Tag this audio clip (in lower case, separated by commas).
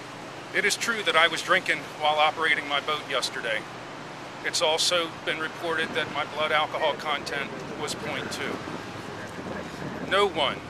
speech